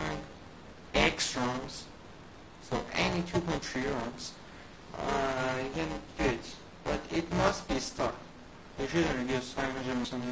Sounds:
speech

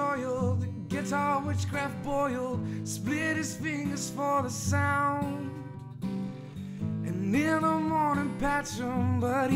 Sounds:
music

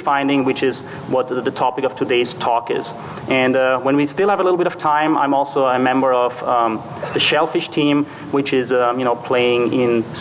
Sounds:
speech

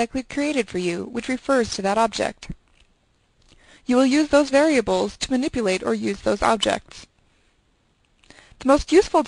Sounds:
speech

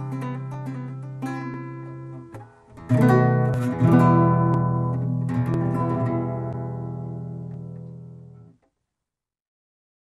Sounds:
music, acoustic guitar, flamenco, guitar, music of latin america

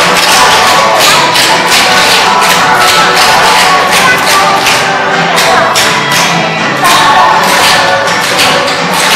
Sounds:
speech, music, inside a large room or hall

